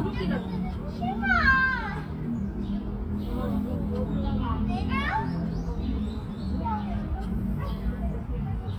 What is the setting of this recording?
park